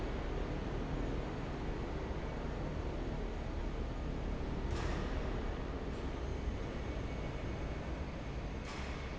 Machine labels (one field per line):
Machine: fan